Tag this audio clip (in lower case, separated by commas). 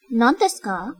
human voice, woman speaking, speech